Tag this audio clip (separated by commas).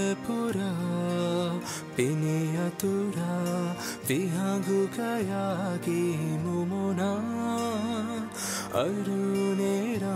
Music